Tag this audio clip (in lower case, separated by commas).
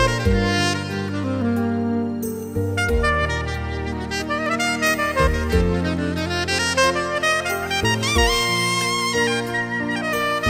saxophone, music